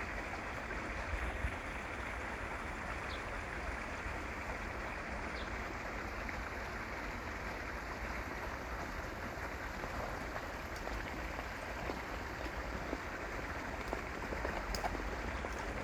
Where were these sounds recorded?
in a park